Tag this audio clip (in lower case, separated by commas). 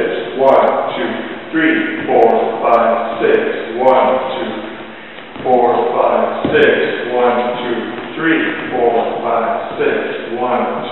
speech